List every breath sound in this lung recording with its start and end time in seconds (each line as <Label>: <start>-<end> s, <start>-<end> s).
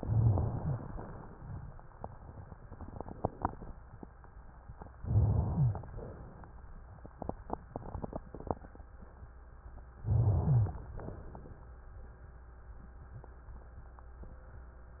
Inhalation: 0.00-0.91 s, 4.99-5.90 s, 10.04-10.95 s
Exhalation: 5.94-6.57 s, 10.98-11.61 s
Rhonchi: 0.00-0.91 s, 4.99-5.90 s, 10.04-10.95 s